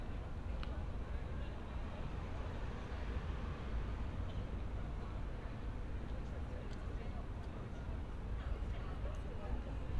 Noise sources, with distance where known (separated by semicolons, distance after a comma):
person or small group talking, far